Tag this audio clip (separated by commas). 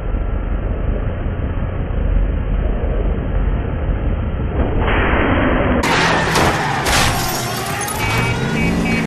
Car